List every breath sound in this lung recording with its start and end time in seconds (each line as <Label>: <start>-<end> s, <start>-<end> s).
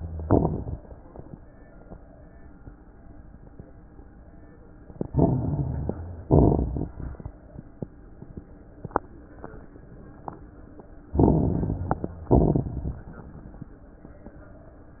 Inhalation: 5.01-6.23 s, 11.09-12.19 s
Exhalation: 0.00-0.77 s, 6.29-7.39 s, 12.26-13.14 s
Crackles: 0.00-0.77 s, 5.01-6.23 s, 6.29-7.39 s, 11.09-12.19 s, 12.26-13.14 s